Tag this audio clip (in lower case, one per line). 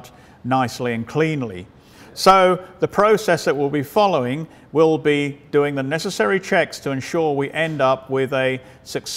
speech